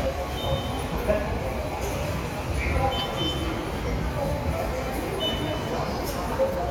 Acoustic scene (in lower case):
subway station